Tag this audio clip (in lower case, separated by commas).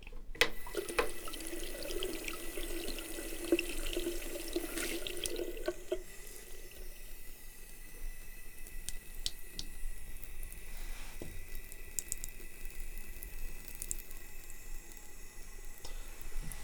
domestic sounds, sink (filling or washing)